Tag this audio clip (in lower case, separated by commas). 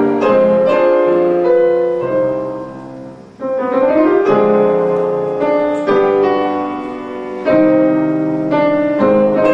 new-age music, music